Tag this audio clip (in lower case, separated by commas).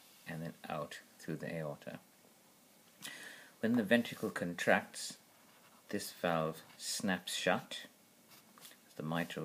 speech